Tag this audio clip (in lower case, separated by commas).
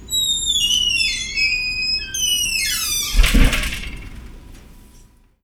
squeak